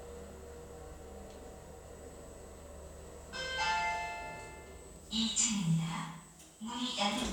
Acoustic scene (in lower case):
elevator